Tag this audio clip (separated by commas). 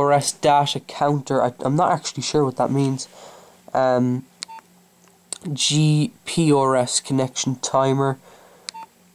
Speech